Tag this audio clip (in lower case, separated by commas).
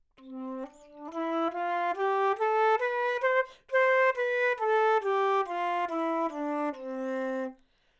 wind instrument, musical instrument, music